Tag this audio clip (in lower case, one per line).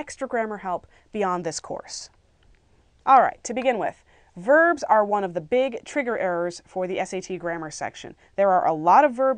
speech